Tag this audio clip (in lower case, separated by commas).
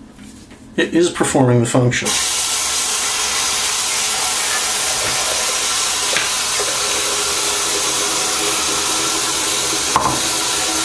speech